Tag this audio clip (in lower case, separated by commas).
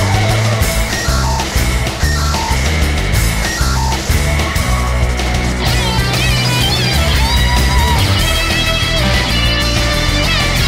music